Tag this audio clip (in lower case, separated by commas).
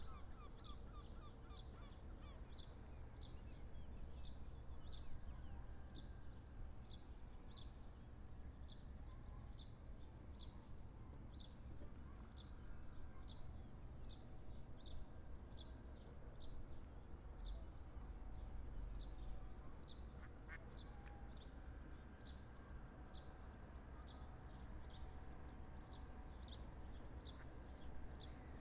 livestock, animal, wild animals, fowl, gull, bird